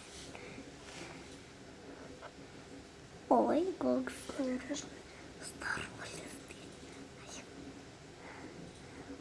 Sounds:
Speech

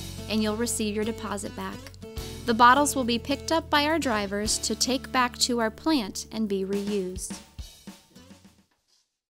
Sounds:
Speech, Music

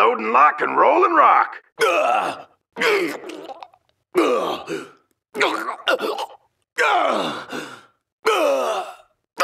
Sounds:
Speech, Groan

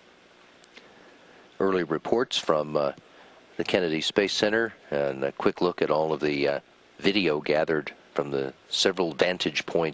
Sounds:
Music

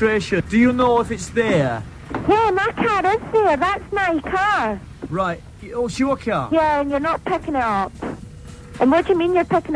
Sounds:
Speech

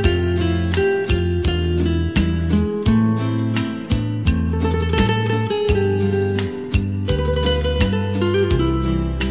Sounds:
Electric guitar, Acoustic guitar, Strum, Guitar, Music, Plucked string instrument, Musical instrument

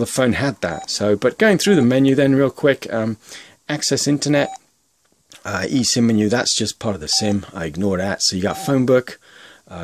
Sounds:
inside a small room, Speech, DTMF

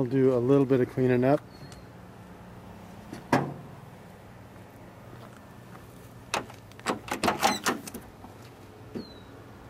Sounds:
Car, Speech

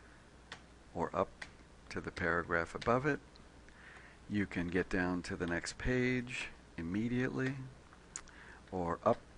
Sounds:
Speech

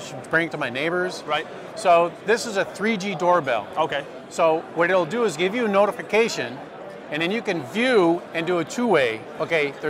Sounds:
Speech

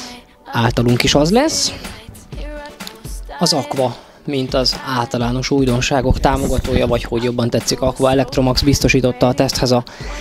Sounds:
Music, Speech

